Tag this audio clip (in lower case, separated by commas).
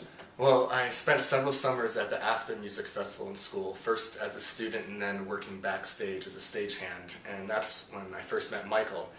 speech